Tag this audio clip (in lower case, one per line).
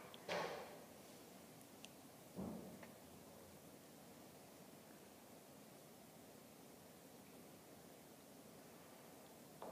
trombone
brass instrument